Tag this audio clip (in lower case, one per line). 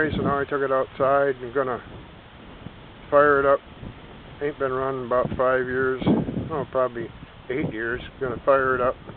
speech